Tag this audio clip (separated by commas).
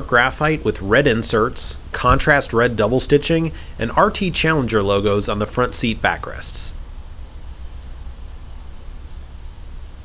Speech